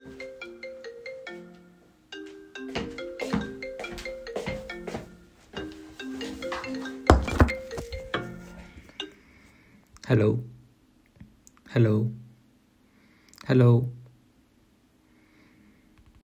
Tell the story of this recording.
The phone rings on the desk and I walk toward it.